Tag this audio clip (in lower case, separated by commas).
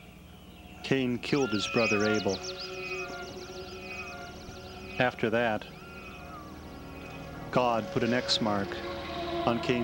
speech, music